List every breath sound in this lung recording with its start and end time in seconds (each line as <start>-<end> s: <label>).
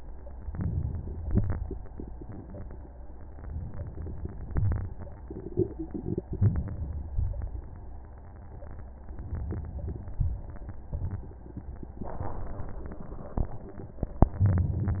0.46-1.41 s: inhalation
1.40-2.36 s: exhalation
6.26-7.16 s: inhalation
7.14-8.04 s: exhalation
9.28-10.23 s: inhalation
10.23-10.97 s: exhalation
14.19-15.00 s: crackles
14.24-14.98 s: inhalation